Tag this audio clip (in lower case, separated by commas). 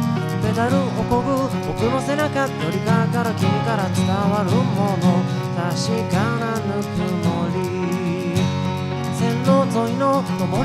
music